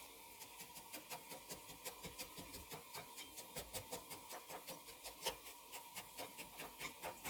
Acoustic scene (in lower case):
kitchen